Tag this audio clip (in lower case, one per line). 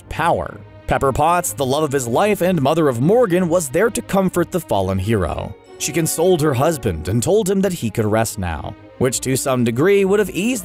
people finger snapping